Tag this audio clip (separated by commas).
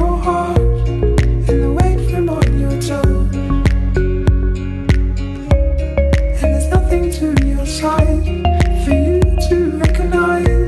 Music